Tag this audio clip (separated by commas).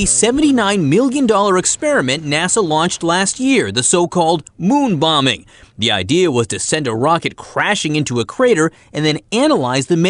Speech